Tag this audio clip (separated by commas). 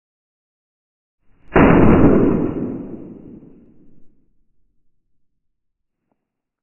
Boom, Explosion